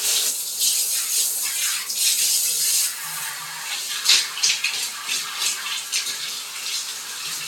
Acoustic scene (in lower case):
restroom